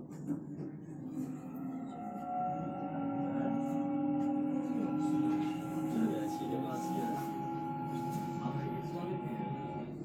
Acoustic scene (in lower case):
subway train